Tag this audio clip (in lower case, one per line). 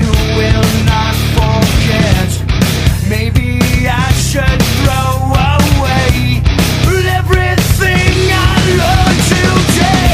music